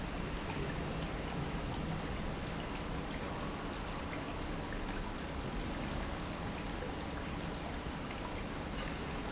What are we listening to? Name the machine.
pump